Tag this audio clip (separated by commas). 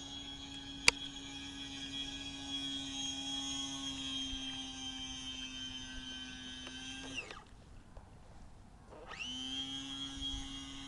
Boat